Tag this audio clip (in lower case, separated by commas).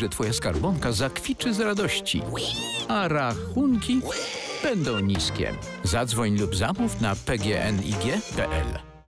music, oink, speech